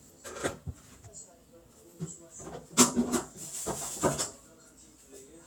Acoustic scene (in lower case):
kitchen